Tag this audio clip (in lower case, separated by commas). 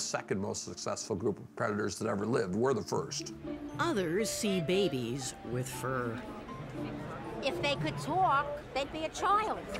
speech, music